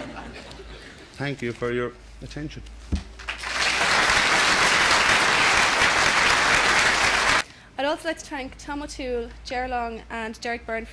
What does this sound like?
The man thanks people for listening and then everyone claps